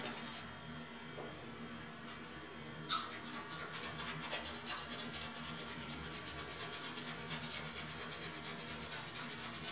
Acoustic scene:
restroom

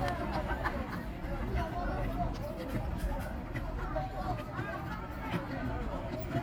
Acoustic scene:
park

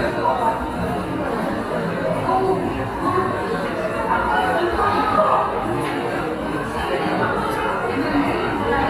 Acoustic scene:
cafe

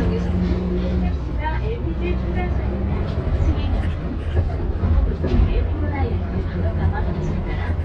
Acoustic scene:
bus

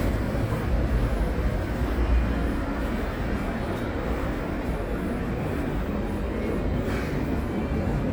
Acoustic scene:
residential area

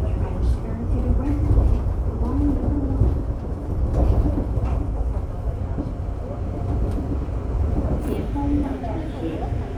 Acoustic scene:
subway train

